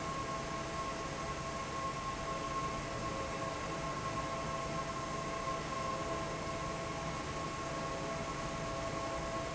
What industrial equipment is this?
fan